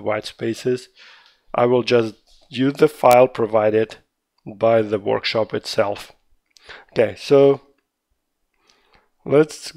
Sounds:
Speech

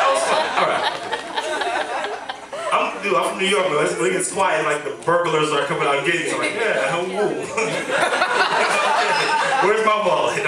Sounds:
Speech

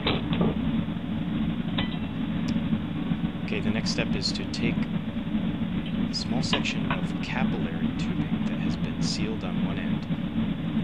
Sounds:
Speech

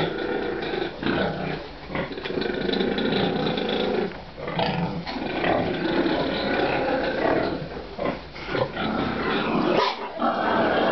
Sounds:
Oink, pig oinking

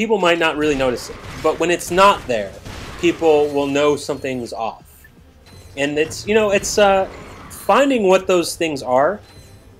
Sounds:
Speech

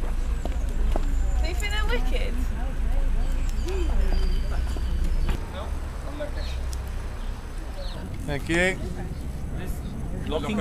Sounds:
Speech

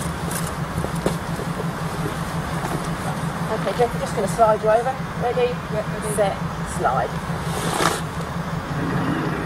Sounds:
Speech, Vehicle

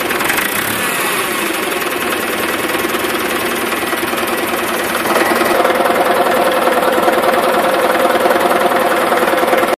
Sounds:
Sound effect

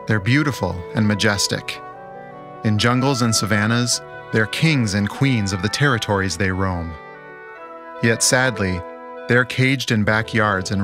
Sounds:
Speech, Music

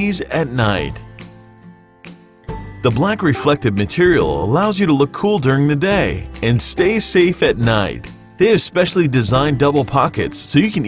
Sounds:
Music, Speech

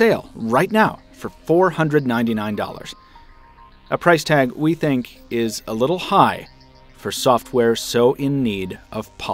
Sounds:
Speech, Music, Narration

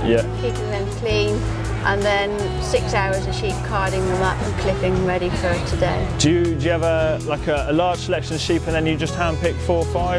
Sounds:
Music, Speech

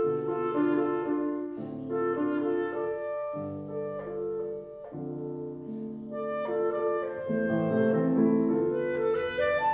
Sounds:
Clarinet, Piano, Classical music, Music, Double bass

